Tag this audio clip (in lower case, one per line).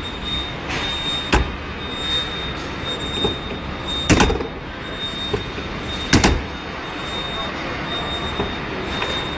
car
vehicle
door